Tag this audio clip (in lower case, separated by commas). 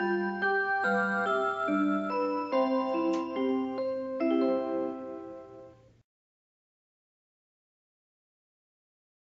music, tick-tock